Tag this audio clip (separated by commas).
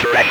Speech, Human voice